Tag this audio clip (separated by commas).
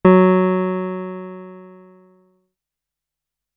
Music, Musical instrument, Keyboard (musical), Piano